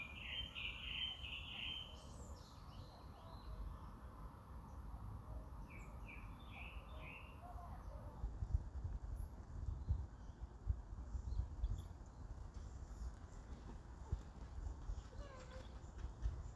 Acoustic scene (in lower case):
park